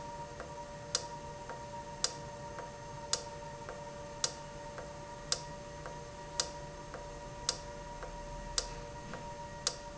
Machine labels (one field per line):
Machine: valve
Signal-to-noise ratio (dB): 0 dB